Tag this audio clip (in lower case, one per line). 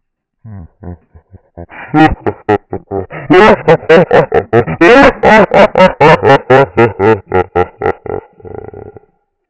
human voice
laughter